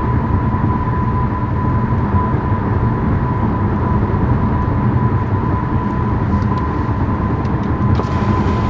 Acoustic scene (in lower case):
car